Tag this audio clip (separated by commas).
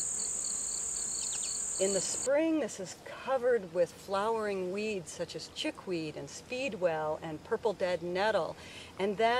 outside, rural or natural, bee or wasp, Speech